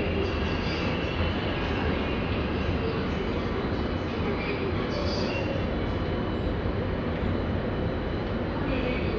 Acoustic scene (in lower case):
subway station